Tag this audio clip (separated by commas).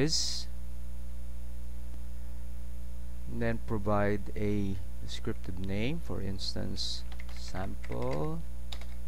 Speech